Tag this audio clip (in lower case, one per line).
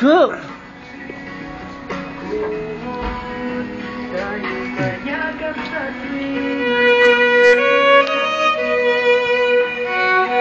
musical instrument
fiddle
music
speech